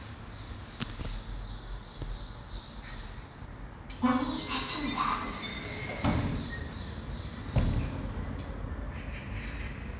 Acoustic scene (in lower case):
elevator